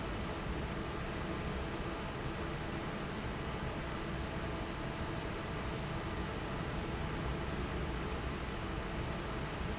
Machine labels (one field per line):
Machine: fan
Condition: normal